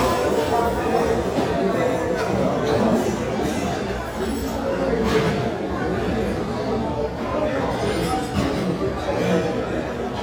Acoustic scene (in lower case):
restaurant